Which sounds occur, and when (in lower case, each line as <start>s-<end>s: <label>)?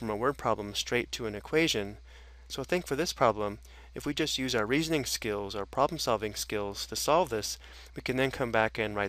0.0s-2.0s: man speaking
0.0s-9.0s: background noise
2.0s-2.5s: breathing
2.5s-3.6s: man speaking
3.6s-3.9s: breathing
3.9s-7.6s: man speaking
5.5s-5.6s: tick
5.7s-5.8s: tick
7.6s-7.9s: breathing
7.9s-9.0s: man speaking